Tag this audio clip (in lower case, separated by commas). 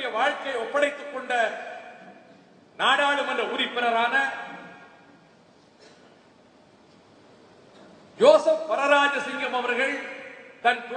speech, narration, man speaking